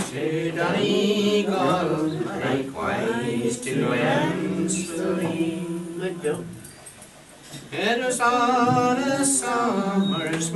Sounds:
Speech, Female singing, Male singing

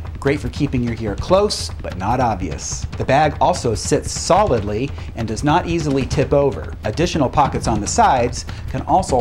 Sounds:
Music, Speech

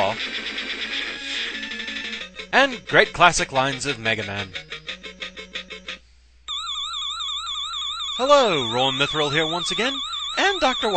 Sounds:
Speech

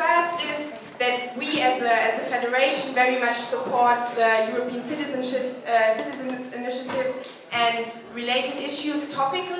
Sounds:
woman speaking, Speech, monologue

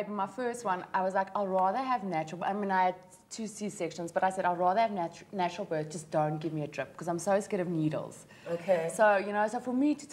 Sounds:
inside a small room, Speech

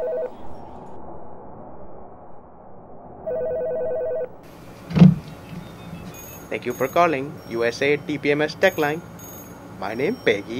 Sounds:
inside a large room or hall, outside, rural or natural, Speech

